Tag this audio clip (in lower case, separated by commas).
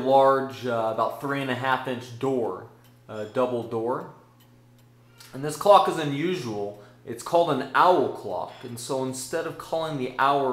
speech